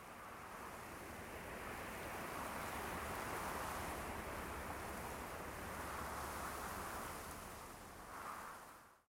Outside setting of natural gusts of winds blowing